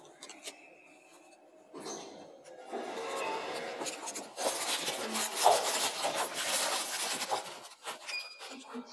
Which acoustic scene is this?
elevator